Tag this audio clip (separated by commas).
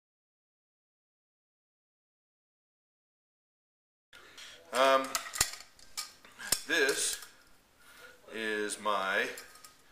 Speech, inside a small room